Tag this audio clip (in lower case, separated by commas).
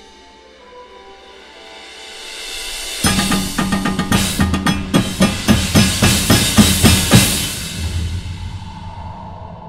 music, drum, outside, urban or man-made